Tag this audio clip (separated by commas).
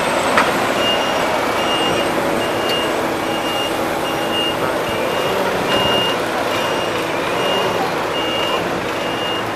Vehicle